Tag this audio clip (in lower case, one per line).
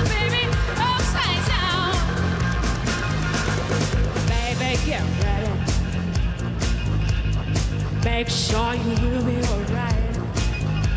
music
disco